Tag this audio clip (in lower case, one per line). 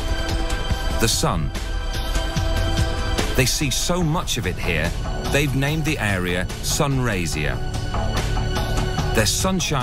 music
speech